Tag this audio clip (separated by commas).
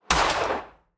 Explosion, Gunshot